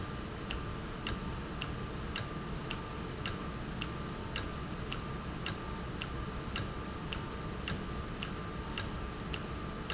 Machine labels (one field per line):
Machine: valve